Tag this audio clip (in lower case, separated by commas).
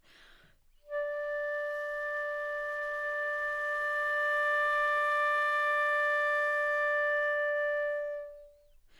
wind instrument, musical instrument, music